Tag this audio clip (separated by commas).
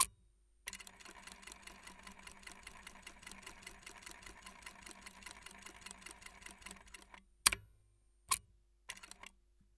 Mechanisms